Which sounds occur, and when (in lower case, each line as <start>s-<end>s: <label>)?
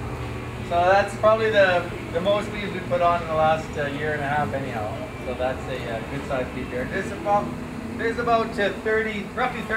0.0s-9.7s: bee or wasp
0.0s-9.7s: mechanisms
0.7s-1.8s: male speech
2.1s-5.1s: male speech
5.3s-7.5s: male speech
8.0s-9.7s: male speech